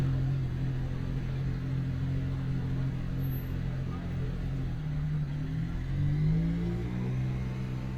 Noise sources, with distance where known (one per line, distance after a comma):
medium-sounding engine